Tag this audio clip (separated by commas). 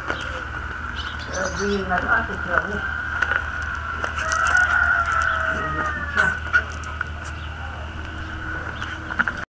Animal, Dog, Speech, Domestic animals